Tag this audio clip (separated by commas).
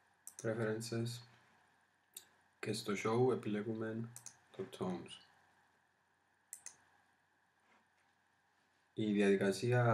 Speech